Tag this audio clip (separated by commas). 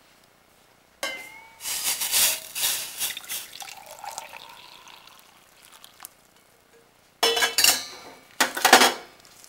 dribble, Water, Sizzle